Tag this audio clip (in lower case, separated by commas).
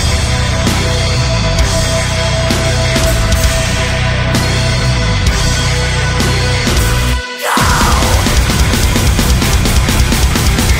music